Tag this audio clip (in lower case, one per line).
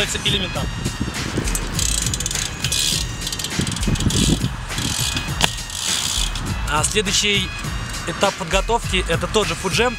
speech
music